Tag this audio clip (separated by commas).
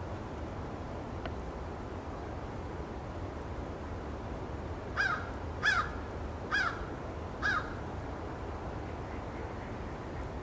crow cawing